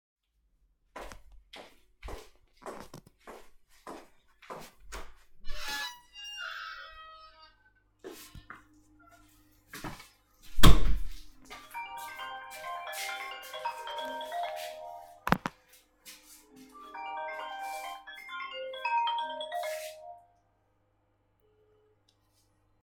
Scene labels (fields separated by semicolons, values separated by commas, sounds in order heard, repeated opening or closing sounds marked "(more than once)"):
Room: hallway, cellar; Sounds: footsteps, door (more than once), phone ringing